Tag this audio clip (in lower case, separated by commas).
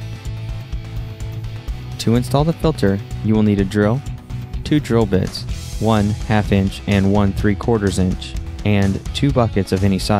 speech, music